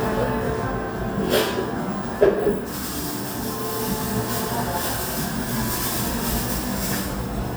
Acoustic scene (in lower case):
cafe